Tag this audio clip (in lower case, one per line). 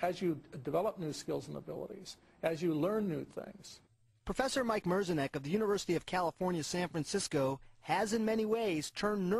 speech